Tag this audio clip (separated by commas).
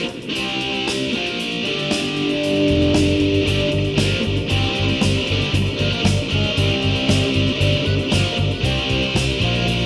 Music